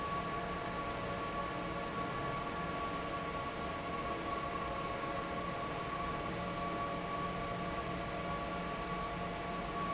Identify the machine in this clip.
fan